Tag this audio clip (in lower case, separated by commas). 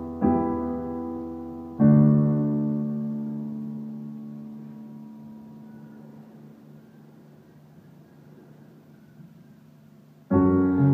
music, keyboard (musical), piano